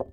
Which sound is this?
glass object falling